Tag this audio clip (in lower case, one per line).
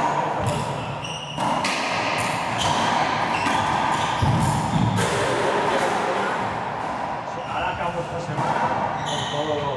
playing squash